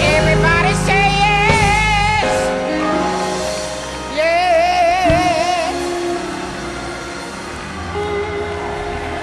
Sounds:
female singing, choir, music

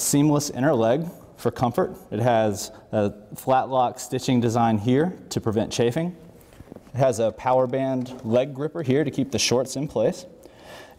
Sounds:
speech

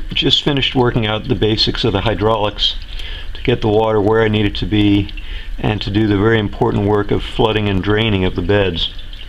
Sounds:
speech

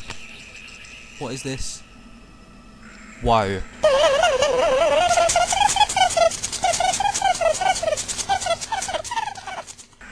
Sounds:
speech

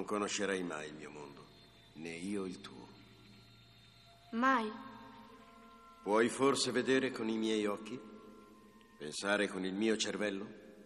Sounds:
speech

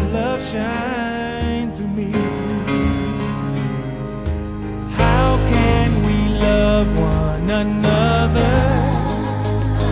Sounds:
music, male singing

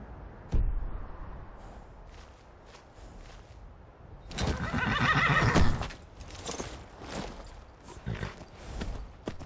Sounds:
clip-clop, horse

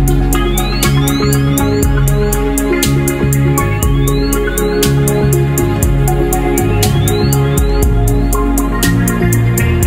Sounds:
music, synthesizer

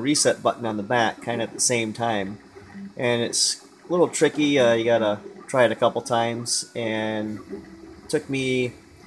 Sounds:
speech

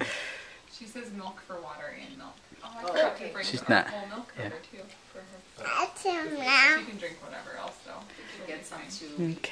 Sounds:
inside a small room, speech, child speech

